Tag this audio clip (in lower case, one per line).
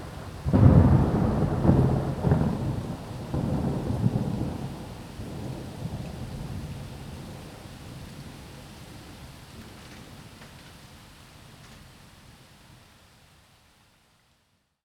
thunderstorm
water
rain
thunder